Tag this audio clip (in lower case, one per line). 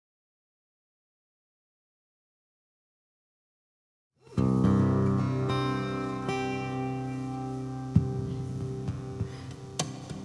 acoustic guitar
musical instrument
plucked string instrument
guitar